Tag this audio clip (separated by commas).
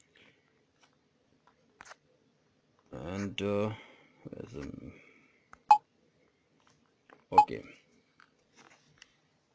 inside a small room, Speech